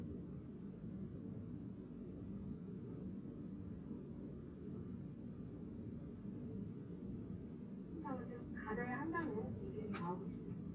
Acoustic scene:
car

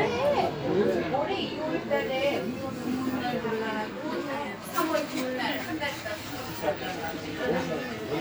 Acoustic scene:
park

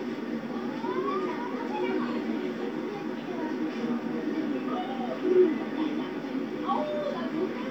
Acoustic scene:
park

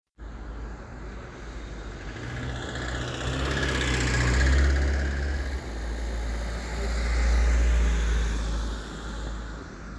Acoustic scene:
residential area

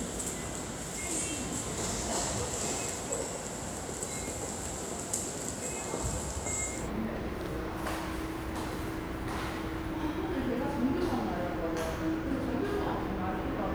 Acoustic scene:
subway station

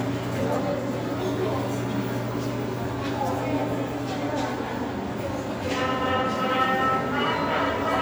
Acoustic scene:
subway station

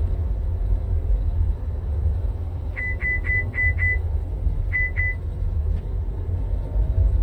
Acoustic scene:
car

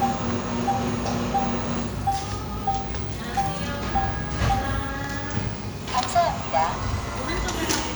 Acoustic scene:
cafe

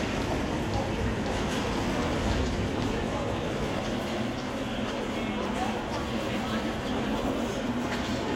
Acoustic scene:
crowded indoor space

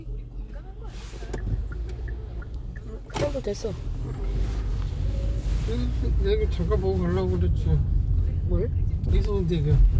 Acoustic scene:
car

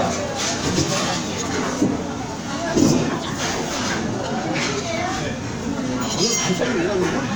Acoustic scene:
crowded indoor space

